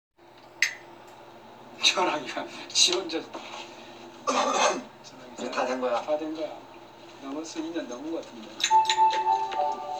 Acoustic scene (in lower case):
elevator